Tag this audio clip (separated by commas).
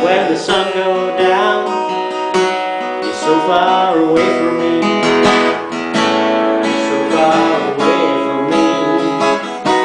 Guitar, Musical instrument, Plucked string instrument, Music, Strum, playing acoustic guitar, Acoustic guitar